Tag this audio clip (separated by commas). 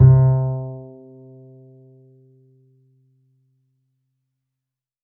Music, Bowed string instrument, Musical instrument